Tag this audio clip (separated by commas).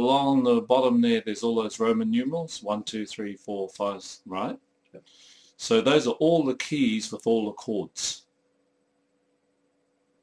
Speech